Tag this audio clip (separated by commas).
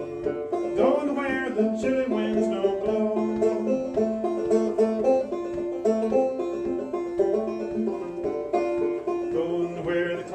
Music, Banjo, Musical instrument